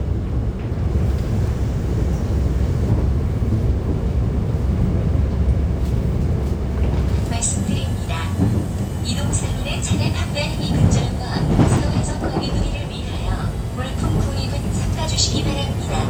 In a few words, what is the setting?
subway train